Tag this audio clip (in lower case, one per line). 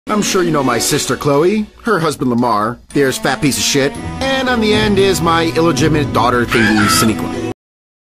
speech
sound effect
music